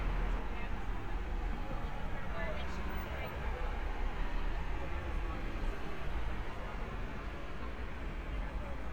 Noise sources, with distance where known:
person or small group talking

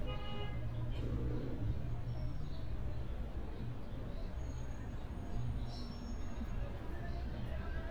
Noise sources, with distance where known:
car horn, far

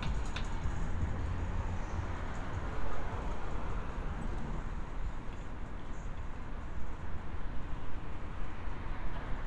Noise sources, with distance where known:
medium-sounding engine, near
music from an unclear source, near

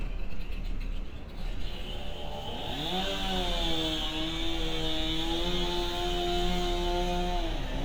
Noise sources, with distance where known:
unidentified powered saw, near

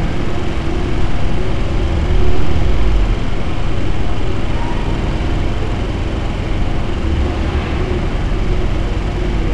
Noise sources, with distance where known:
engine of unclear size, near

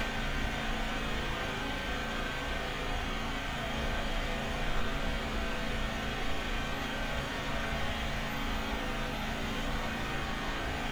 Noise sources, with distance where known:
engine of unclear size, near

